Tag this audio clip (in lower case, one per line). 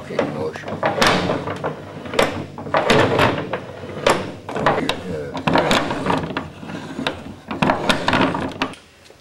speech